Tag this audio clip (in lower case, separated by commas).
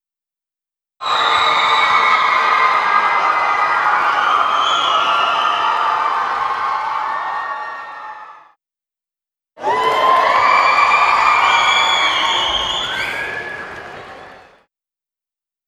cheering, crowd, human group actions